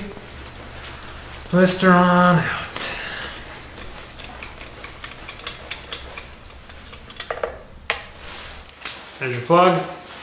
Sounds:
inside a large room or hall, speech

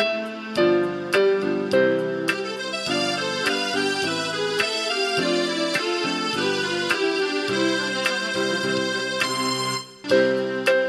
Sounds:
music, happy music

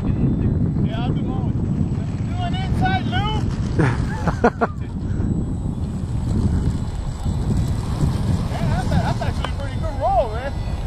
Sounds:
vehicle, aircraft

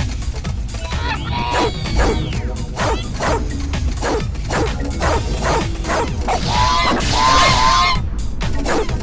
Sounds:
bow-wow

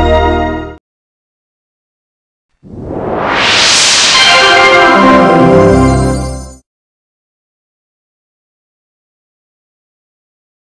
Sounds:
sound effect, music

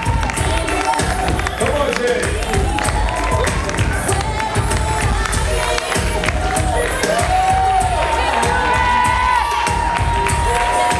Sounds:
speech, music

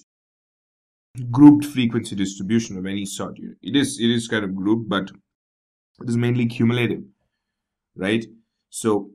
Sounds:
speech, speech synthesizer

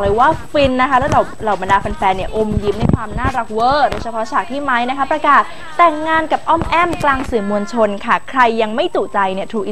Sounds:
speech

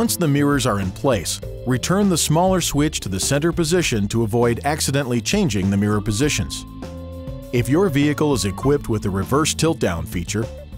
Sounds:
music, speech

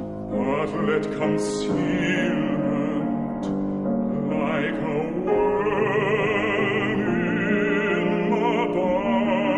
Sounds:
opera, music

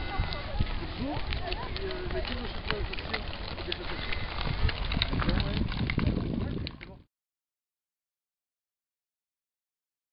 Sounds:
speech

